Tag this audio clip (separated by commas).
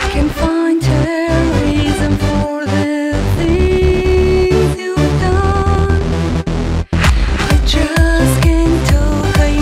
Music